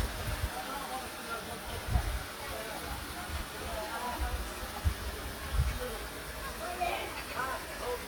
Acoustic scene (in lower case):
park